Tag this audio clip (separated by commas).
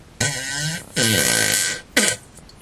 Fart